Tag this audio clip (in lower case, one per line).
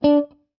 plucked string instrument
musical instrument
music
guitar